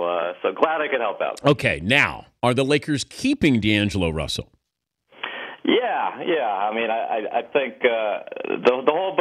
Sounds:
speech

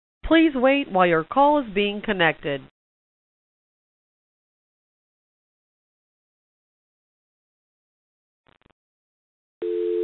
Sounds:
speech

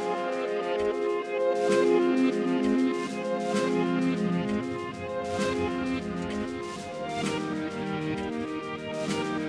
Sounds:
music

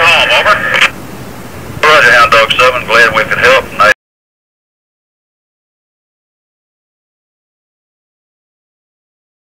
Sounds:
police radio chatter

